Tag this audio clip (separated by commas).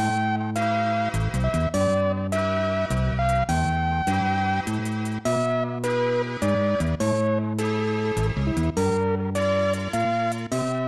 Music